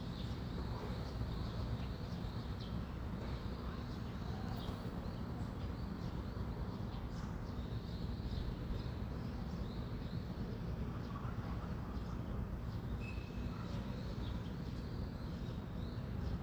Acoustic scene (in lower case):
residential area